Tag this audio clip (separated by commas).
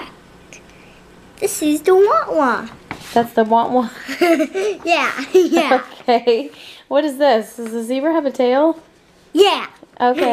Child speech